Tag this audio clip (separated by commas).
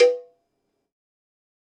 Cowbell, Bell